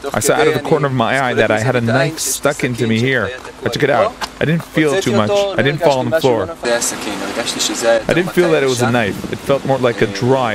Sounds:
Speech

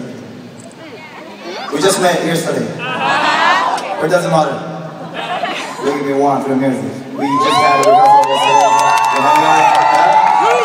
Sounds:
Speech

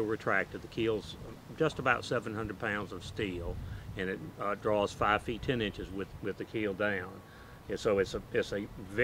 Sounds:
Speech

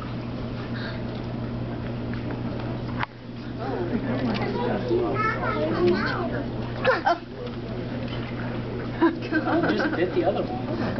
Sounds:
Speech

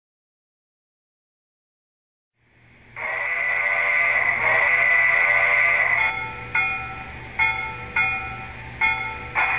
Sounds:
Train, outside, urban or man-made, Vehicle, Rail transport, train wagon

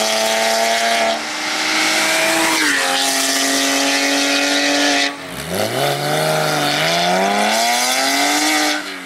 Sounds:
Car, Accelerating, Vehicle

